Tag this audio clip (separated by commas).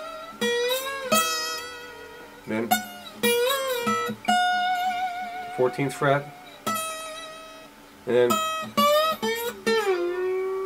Music, Speech, Musical instrument, Guitar, Plucked string instrument, Acoustic guitar